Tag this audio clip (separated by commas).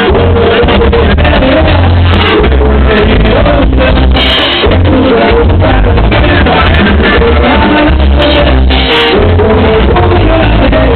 Music